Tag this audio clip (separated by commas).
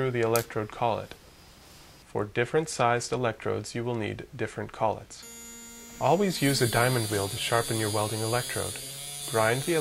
Speech